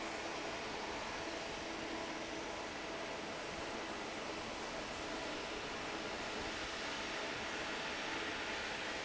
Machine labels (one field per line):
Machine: fan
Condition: normal